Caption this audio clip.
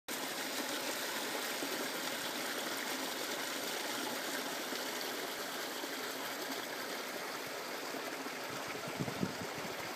Water is rushing